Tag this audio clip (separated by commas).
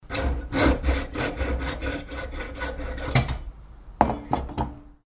Sawing, Mechanisms, Tools